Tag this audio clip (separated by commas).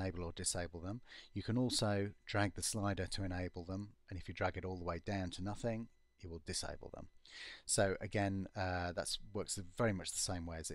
Speech